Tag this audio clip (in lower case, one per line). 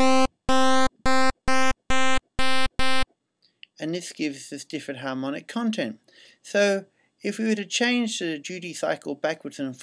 speech
pulse